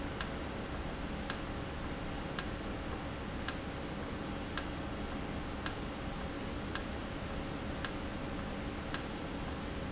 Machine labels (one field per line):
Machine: valve